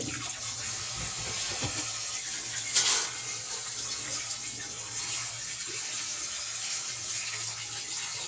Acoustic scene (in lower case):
kitchen